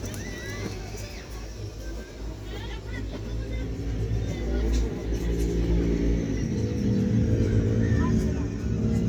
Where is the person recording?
in a residential area